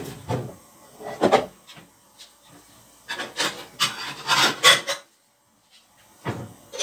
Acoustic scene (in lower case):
kitchen